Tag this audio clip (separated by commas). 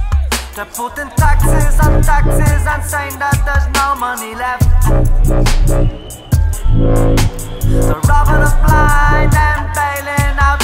Music